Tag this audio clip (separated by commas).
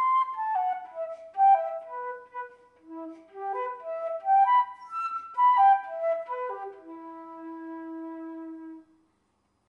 Music